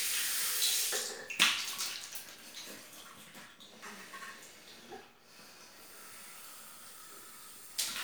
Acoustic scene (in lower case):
restroom